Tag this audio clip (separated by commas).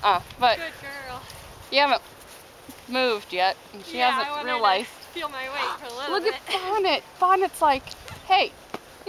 Speech